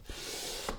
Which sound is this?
wooden furniture moving